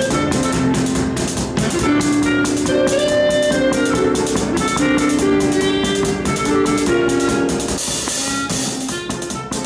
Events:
[0.00, 9.65] music

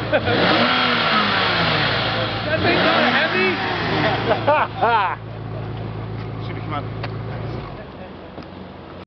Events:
[0.00, 0.37] laughter
[0.00, 9.04] car
[0.28, 2.14] accelerating
[2.40, 2.91] male speech
[2.58, 4.22] accelerating
[3.11, 3.60] male speech
[3.97, 5.12] laughter
[5.72, 5.82] tick
[6.11, 6.29] footsteps
[6.41, 6.87] male speech
[6.97, 7.08] tick
[7.28, 8.13] male speech
[7.85, 7.99] tick
[8.31, 8.47] generic impact sounds

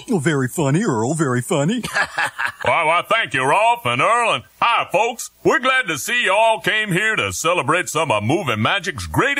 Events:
[0.00, 9.35] background noise
[0.00, 9.35] conversation
[0.13, 1.84] man speaking
[1.84, 2.55] giggle
[2.65, 4.42] man speaking
[4.64, 5.35] man speaking
[5.47, 9.35] man speaking

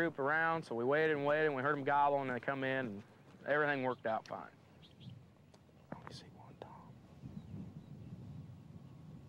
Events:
[0.00, 2.98] man speaking
[0.00, 9.25] wind
[2.87, 3.02] walk
[3.22, 3.37] walk
[3.43, 4.48] man speaking
[3.80, 3.94] bird vocalization
[4.03, 4.17] bird vocalization
[4.75, 5.16] bird vocalization
[5.84, 6.92] whispering
[7.14, 7.58] bird vocalization
[7.76, 9.19] bird vocalization

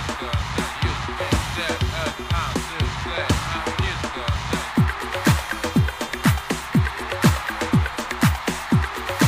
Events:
[0.00, 9.25] cheering
[0.00, 9.25] music
[0.13, 0.36] male singing
[0.54, 0.96] male singing
[1.12, 1.76] male singing
[1.91, 2.09] male singing
[2.26, 2.50] male singing
[2.67, 2.87] male singing
[3.06, 4.28] male singing
[4.44, 4.68] male singing

